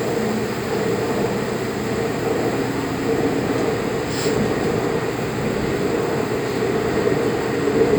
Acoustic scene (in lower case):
subway train